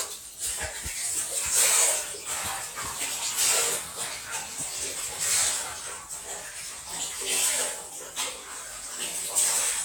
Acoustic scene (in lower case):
restroom